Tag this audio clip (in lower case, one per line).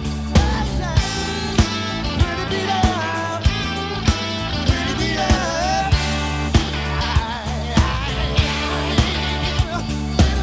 music